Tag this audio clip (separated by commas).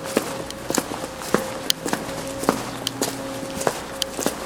footsteps